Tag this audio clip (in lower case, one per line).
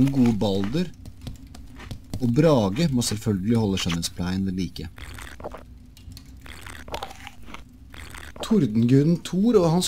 crunch
speech